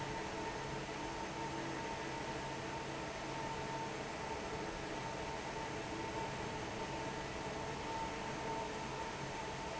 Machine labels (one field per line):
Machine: fan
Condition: normal